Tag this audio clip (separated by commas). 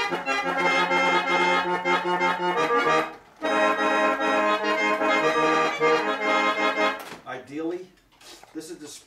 Music, Speech